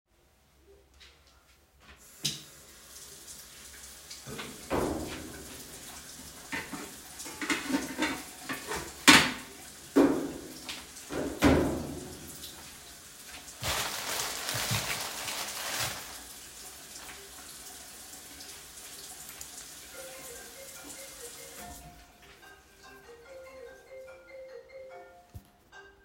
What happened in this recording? I opened the tap, and while the water was still running I searched for fruits in the kitchen drawers making noise with the dishes. I found it on the counter and searched the bag for it and took them out. I wanted to click on the recipe on my laptop, when my phone rang.